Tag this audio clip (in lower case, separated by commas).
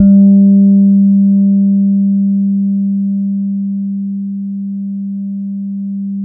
musical instrument, plucked string instrument, guitar, music, bass guitar